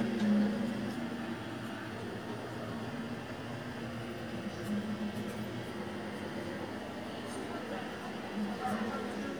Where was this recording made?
on a street